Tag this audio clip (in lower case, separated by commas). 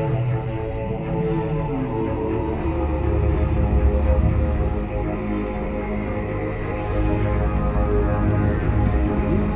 scary music, music